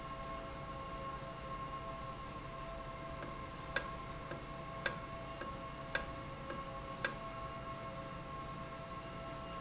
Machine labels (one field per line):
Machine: valve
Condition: normal